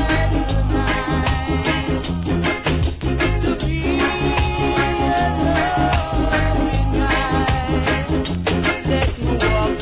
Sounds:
music

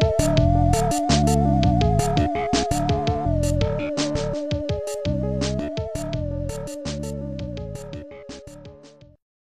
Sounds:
funny music, music

